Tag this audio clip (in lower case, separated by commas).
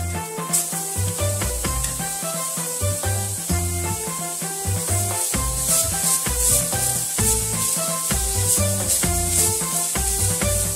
music, inside a small room